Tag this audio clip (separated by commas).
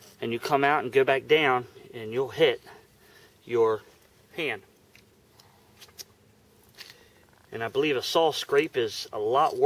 Speech